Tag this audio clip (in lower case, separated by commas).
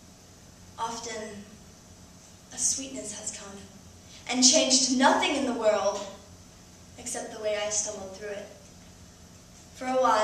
speech